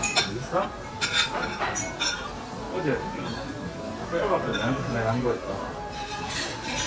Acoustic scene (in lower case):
restaurant